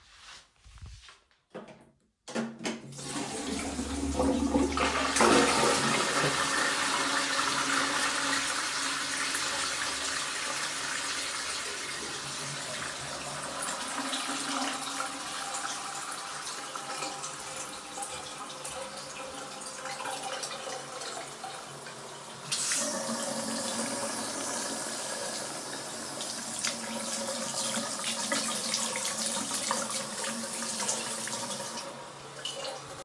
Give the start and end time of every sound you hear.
[2.17, 22.16] toilet flushing
[22.39, 32.24] running water

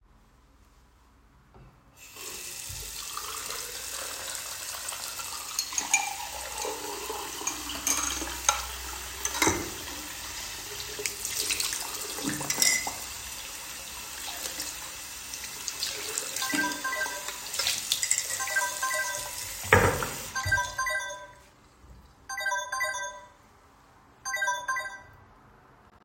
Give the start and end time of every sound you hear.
[2.00, 20.64] running water
[5.27, 9.80] cutlery and dishes
[12.26, 13.03] cutlery and dishes
[16.25, 25.08] phone ringing
[17.83, 18.44] cutlery and dishes

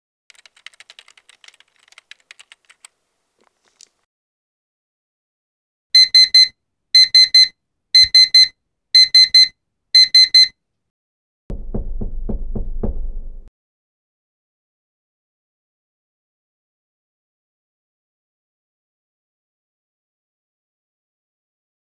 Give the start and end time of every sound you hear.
[0.28, 3.01] keyboard typing
[5.92, 10.57] phone ringing

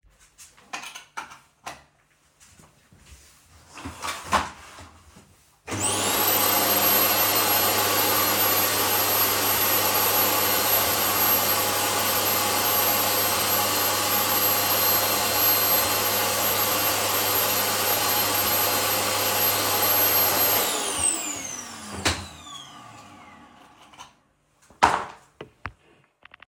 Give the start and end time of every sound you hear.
[5.63, 24.41] vacuum cleaner

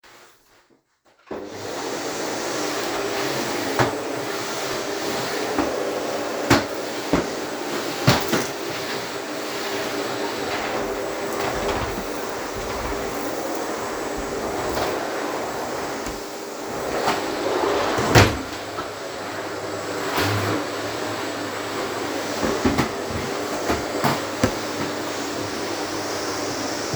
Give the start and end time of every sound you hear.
[1.30, 26.96] vacuum cleaner

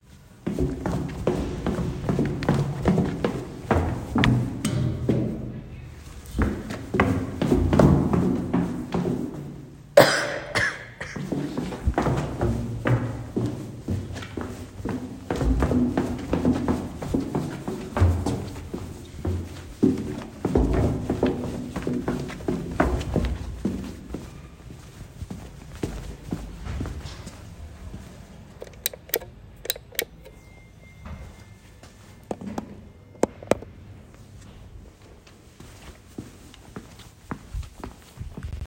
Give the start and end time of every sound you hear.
[0.02, 9.93] footsteps
[10.91, 28.57] footsteps
[28.42, 35.12] light switch
[35.26, 38.68] footsteps

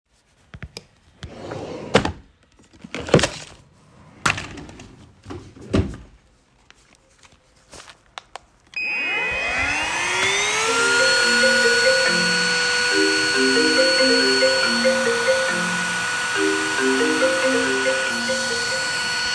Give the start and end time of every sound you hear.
[0.00, 2.24] door
[5.04, 6.31] door
[8.65, 19.35] vacuum cleaner
[10.51, 19.35] phone ringing

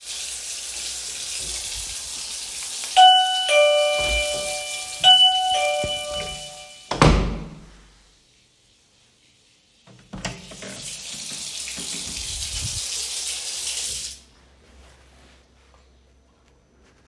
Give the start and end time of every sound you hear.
[0.00, 6.76] running water
[2.76, 6.84] bell ringing
[6.83, 7.69] door
[9.82, 14.29] running water

